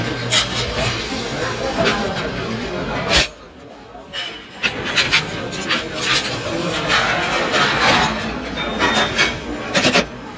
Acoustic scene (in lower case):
restaurant